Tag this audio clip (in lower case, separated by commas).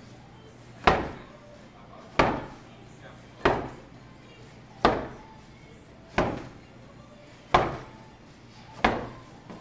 music, slam